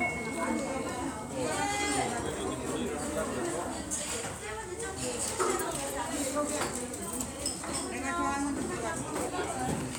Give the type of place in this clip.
restaurant